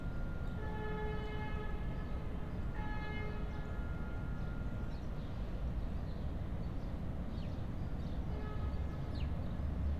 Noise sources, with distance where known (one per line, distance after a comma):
car horn, far